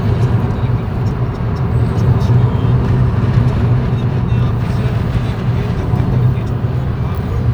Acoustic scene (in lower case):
car